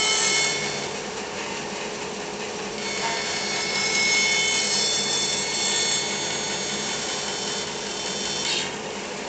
Electric saw cutting